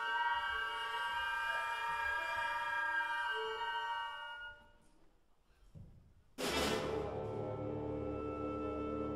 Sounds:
orchestra, classical music, music, fiddle, musical instrument, bowed string instrument

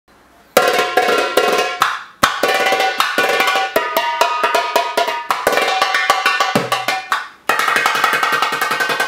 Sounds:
drum, percussion

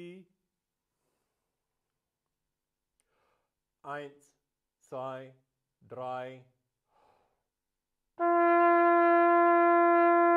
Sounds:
playing bugle

